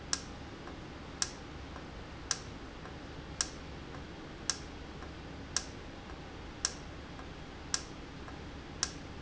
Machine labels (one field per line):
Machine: valve